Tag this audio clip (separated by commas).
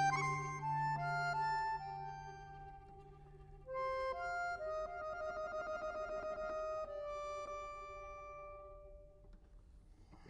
Accordion